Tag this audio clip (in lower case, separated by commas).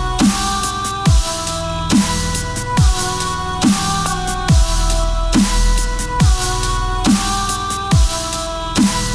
dubstep, music